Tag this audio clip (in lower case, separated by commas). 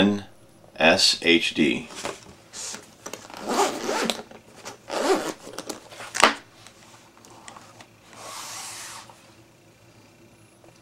inside a small room, speech